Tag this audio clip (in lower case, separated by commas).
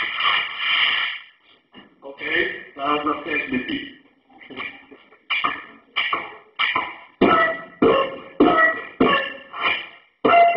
speech, beatboxing